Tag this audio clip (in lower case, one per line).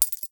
coin (dropping)
domestic sounds